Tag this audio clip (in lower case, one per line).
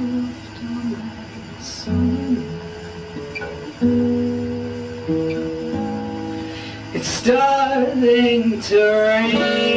music